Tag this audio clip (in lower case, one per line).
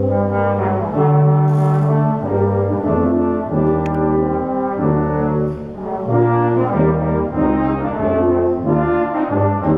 playing french horn